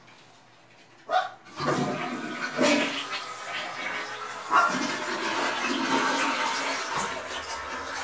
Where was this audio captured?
in a restroom